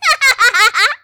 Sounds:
Laughter, Human voice

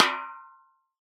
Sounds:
Percussion, Musical instrument, Drum, Music, Snare drum

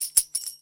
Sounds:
Musical instrument, Tambourine, Music, Percussion

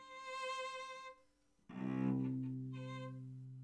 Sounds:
Music, Bowed string instrument, Musical instrument

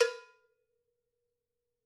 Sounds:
Cowbell, Musical instrument, Music, Bell, Percussion

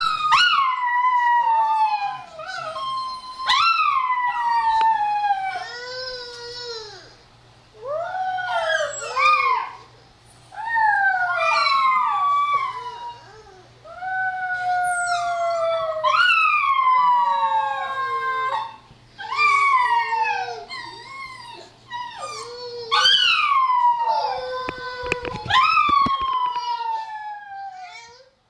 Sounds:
Dog, Domestic animals, Animal

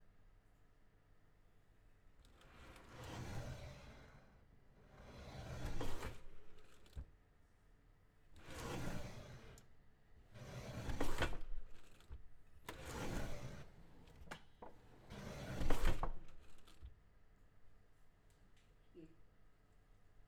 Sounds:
Drawer open or close, Domestic sounds

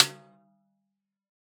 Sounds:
Music, Musical instrument, Percussion, Snare drum, Drum

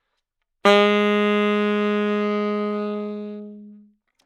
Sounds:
woodwind instrument, Music, Musical instrument

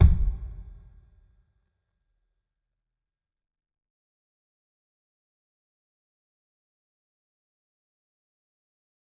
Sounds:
Music, Bass drum, Musical instrument, Percussion, Drum

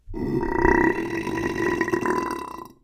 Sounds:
eructation

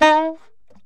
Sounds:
Music, Musical instrument, Wind instrument

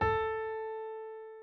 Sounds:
Piano, Music, Musical instrument, Keyboard (musical)

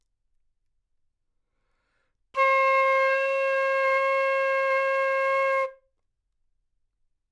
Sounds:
Music, Musical instrument, Wind instrument

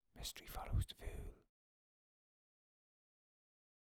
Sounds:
Human voice, Whispering

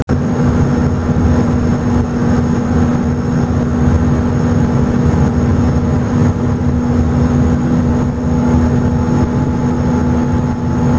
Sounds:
Vehicle, Water vehicle

